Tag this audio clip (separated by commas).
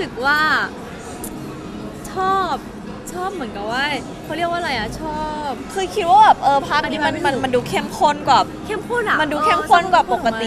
Speech